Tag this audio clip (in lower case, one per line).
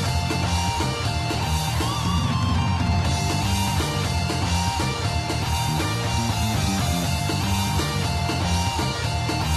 music